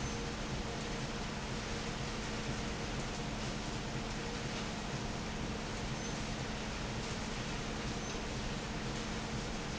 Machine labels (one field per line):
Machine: fan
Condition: normal